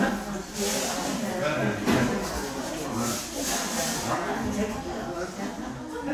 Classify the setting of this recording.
crowded indoor space